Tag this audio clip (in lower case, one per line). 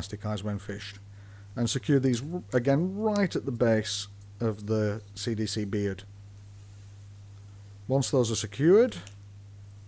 speech